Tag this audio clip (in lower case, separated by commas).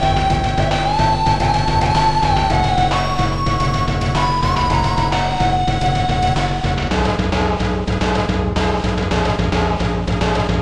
music, background music, country